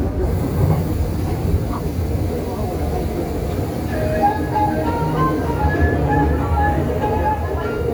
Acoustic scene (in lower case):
subway train